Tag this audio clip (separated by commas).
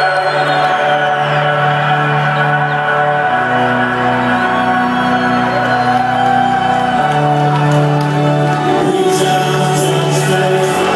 Music, Electronica